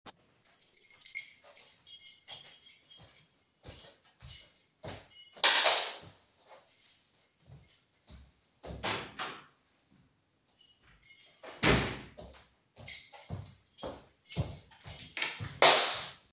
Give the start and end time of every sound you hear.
0.0s-8.5s: footsteps
0.0s-8.5s: keys
8.6s-9.5s: door
10.5s-10.7s: keys
11.5s-12.3s: door
12.4s-16.3s: footsteps
12.4s-16.3s: keys

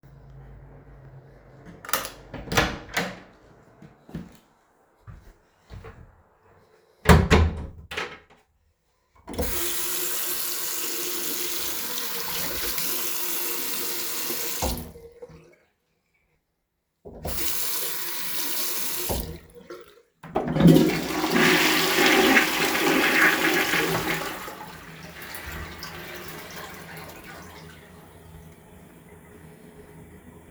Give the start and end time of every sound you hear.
1.6s-3.3s: door
3.8s-4.3s: footsteps
5.0s-5.3s: footsteps
5.7s-6.1s: footsteps
6.9s-8.3s: door
9.2s-15.0s: running water
17.1s-19.8s: running water
20.2s-27.5s: toilet flushing

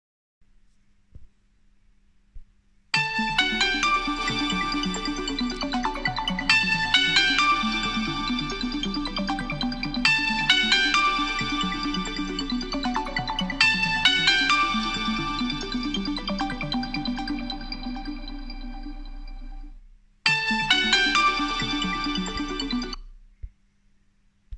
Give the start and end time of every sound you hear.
2.9s-23.1s: phone ringing

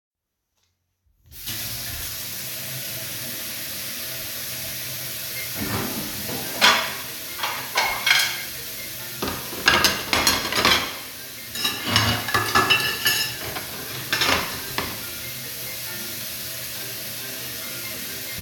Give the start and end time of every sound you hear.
1.3s-18.4s: running water
5.3s-18.4s: phone ringing
5.3s-15.3s: cutlery and dishes

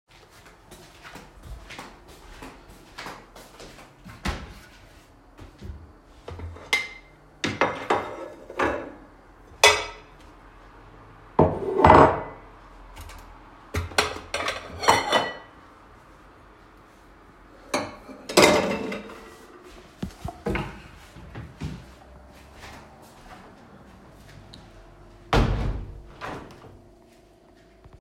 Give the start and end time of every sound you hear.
0.0s-4.2s: footsteps
6.6s-10.2s: cutlery and dishes
11.4s-12.5s: cutlery and dishes
13.7s-15.6s: cutlery and dishes
17.7s-19.9s: cutlery and dishes
20.6s-25.1s: footsteps
25.3s-26.7s: window

